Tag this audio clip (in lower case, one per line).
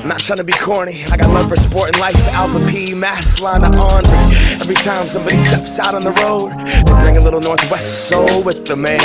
pop music
music